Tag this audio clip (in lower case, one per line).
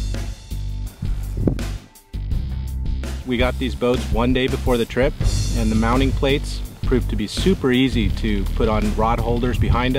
speech
music